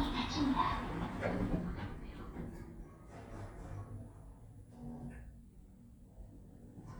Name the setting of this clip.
elevator